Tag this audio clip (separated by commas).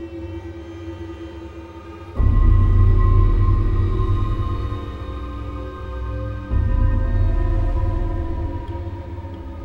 Music